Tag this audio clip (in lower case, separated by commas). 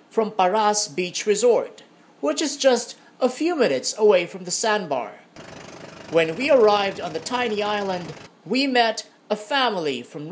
speech